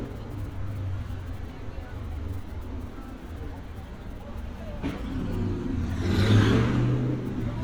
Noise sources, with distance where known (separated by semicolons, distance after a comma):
medium-sounding engine; person or small group talking, far